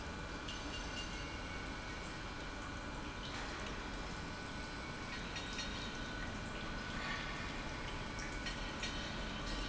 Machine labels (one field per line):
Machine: pump